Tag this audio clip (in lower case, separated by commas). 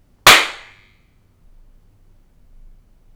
hands, clapping